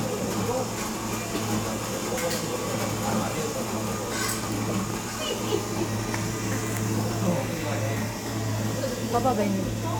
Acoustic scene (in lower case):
cafe